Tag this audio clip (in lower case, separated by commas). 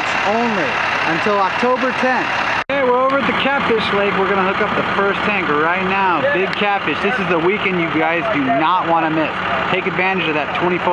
speech, truck, vehicle